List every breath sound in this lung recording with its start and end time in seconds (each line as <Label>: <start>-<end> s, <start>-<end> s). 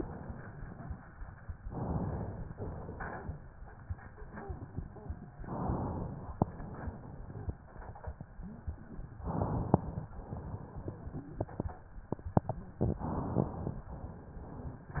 Inhalation: 1.63-2.54 s, 5.39-6.45 s, 9.24-10.13 s, 13.00-13.83 s
Exhalation: 2.54-3.40 s, 6.45-7.53 s, 10.13-10.97 s, 13.83-14.84 s